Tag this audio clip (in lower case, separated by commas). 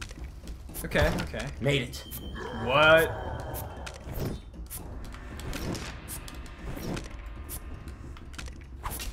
music, speech